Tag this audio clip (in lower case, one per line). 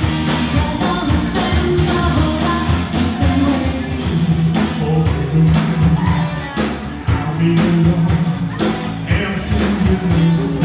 music